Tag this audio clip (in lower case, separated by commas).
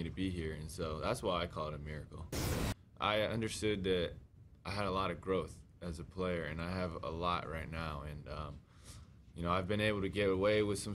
speech, male speech